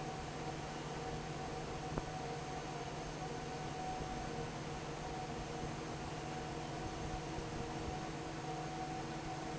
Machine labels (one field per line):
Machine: fan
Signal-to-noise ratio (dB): 0 dB